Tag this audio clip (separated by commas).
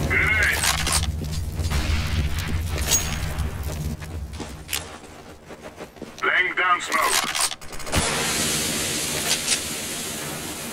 Speech, Music